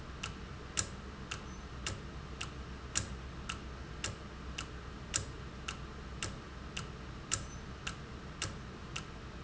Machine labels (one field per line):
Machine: valve